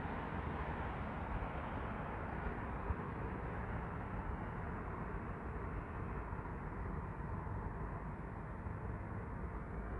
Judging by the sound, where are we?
on a street